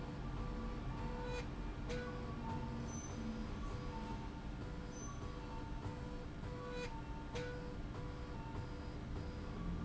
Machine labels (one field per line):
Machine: slide rail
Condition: normal